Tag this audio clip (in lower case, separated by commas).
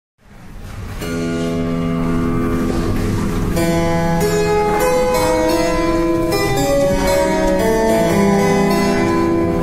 music, keyboard (musical), musical instrument, piano